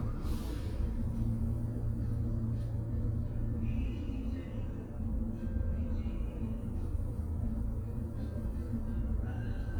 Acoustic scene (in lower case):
bus